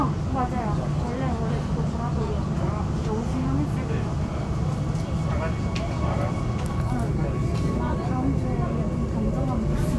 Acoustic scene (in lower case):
subway train